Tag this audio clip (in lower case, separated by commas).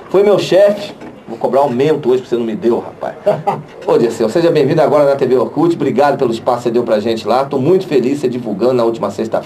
speech